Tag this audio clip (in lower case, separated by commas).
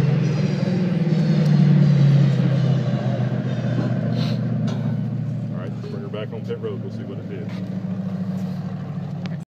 vehicle, speech